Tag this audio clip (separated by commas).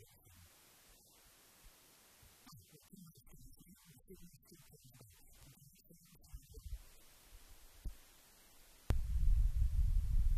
Speech